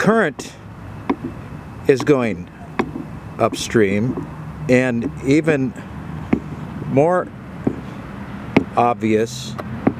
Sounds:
outside, rural or natural, speech

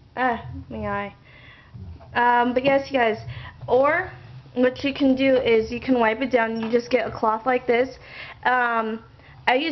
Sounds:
inside a small room, speech

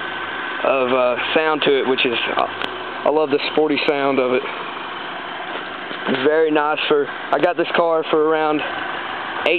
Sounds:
idling, speech, engine

